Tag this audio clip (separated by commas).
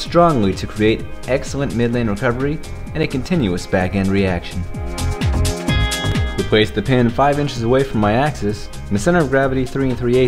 Speech, Music